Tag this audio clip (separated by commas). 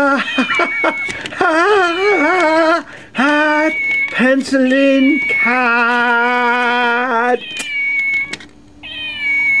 Meow, Animal, Speech, Cat, Domestic animals